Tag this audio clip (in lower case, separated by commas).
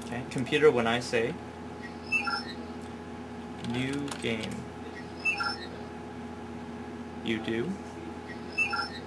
man speaking, speech